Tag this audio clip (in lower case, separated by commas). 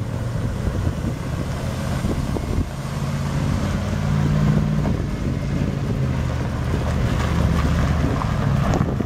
motor vehicle (road), truck, vehicle